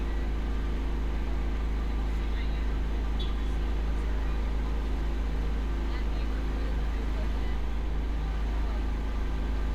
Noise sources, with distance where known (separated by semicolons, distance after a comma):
engine of unclear size, near